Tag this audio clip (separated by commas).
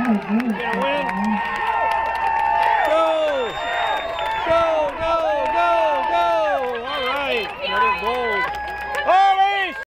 Speech, outside, urban or man-made